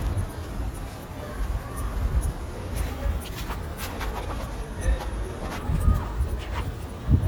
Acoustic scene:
residential area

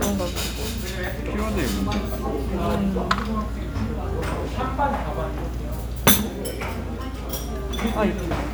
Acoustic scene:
restaurant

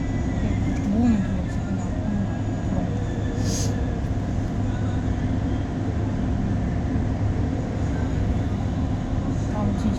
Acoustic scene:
bus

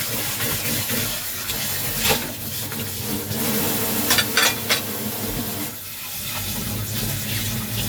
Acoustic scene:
kitchen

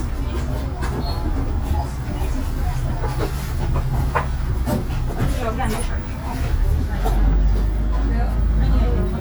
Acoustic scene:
bus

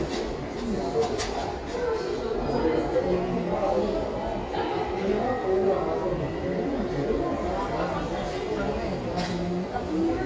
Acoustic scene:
crowded indoor space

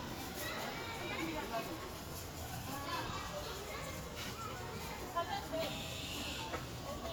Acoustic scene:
park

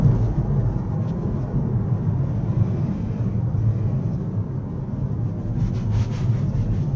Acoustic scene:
car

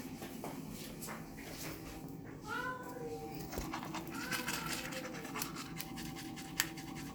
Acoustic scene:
restroom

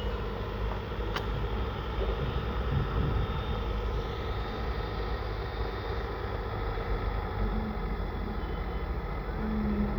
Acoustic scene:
residential area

